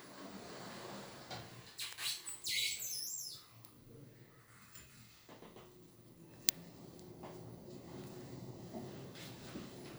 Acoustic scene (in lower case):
elevator